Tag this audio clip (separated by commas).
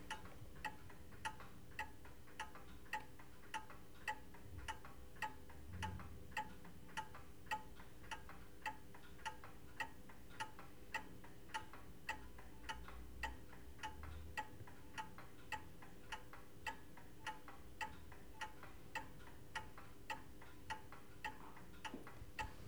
Clock, Mechanisms